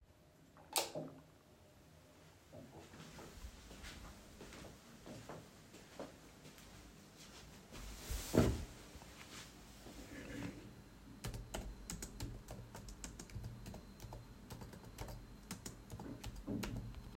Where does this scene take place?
bedroom